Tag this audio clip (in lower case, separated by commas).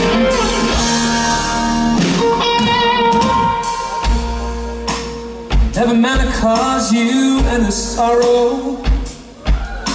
music, speech